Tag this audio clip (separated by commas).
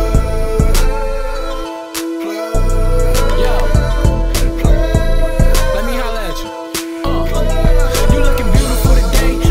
Music